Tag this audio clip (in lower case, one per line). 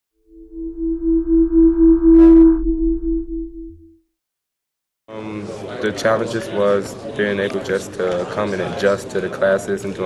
speech
inside a small room
sidetone